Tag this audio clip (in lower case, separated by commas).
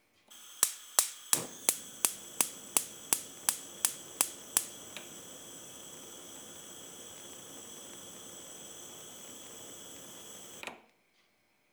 fire